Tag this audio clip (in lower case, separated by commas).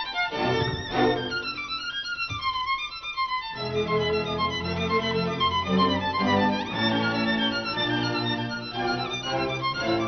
fiddle, music, musical instrument